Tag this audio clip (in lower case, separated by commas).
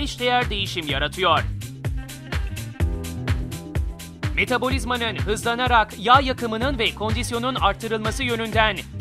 music, speech